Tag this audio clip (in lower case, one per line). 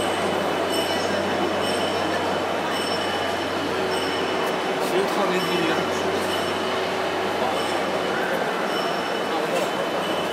printer
speech